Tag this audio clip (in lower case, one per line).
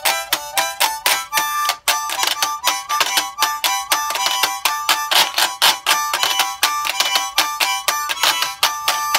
playing washboard